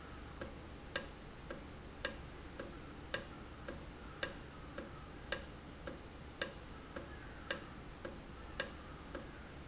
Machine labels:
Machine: valve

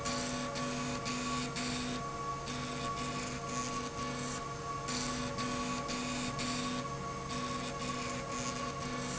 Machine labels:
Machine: slide rail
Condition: abnormal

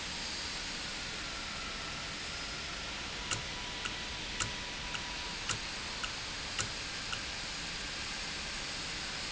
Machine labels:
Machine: valve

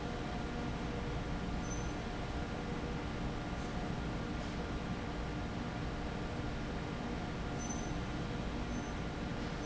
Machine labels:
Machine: fan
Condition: abnormal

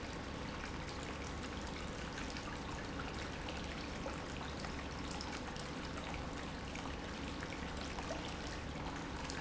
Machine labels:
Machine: pump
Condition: normal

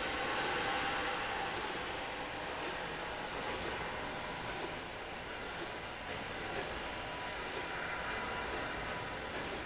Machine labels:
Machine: slide rail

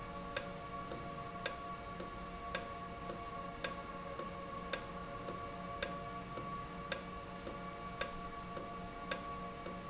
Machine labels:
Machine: valve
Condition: normal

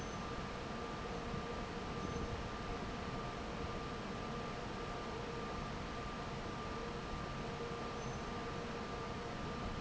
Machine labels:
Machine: fan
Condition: normal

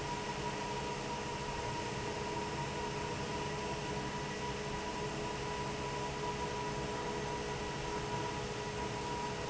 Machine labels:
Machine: fan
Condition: normal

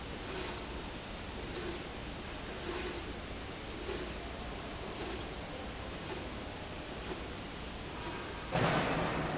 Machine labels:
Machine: slide rail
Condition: normal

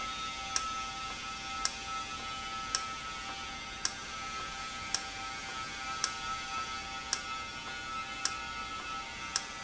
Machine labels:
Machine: valve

